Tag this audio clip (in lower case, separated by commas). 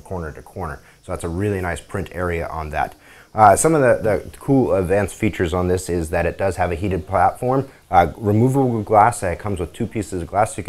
speech